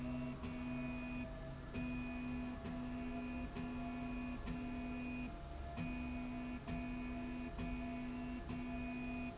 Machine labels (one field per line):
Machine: slide rail